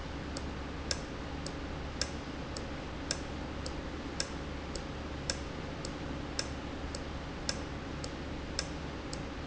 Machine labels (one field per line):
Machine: valve